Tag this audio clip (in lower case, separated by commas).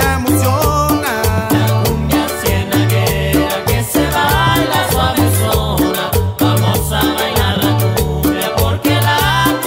salsa music, music